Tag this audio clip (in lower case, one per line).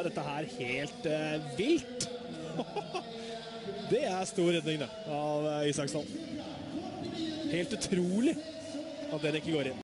speech